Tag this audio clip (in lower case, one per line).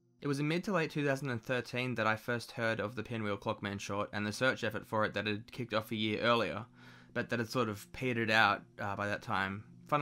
speech